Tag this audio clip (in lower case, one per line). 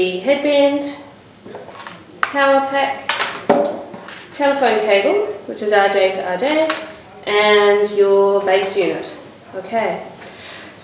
speech